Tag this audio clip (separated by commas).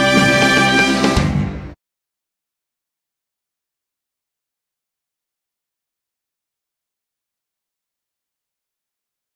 Music